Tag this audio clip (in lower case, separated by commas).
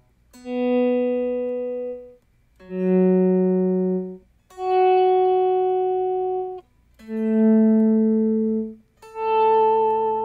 ambient music, music, effects unit, guitar, inside a small room